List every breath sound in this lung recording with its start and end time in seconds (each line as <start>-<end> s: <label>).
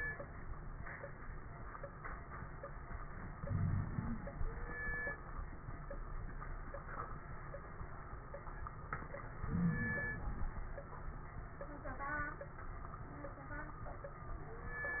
3.40-3.87 s: wheeze
3.40-4.37 s: inhalation
9.41-10.09 s: wheeze
9.41-10.46 s: inhalation